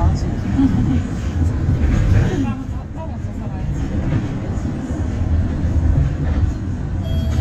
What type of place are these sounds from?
bus